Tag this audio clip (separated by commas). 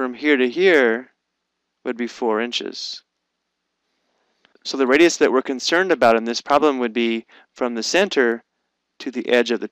Speech